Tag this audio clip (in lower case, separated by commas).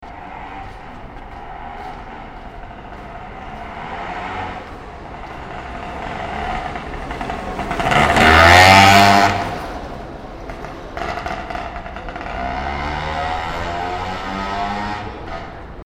engine